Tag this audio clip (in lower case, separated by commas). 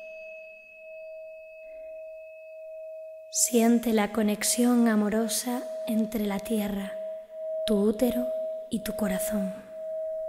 music, speech